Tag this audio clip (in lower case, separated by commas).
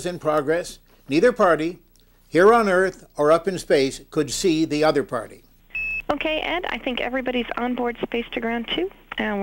speech